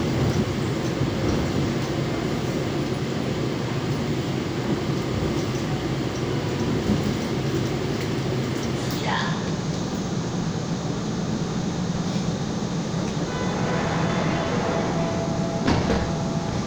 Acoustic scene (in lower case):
subway train